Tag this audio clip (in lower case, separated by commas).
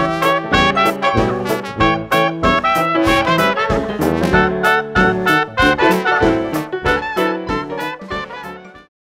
music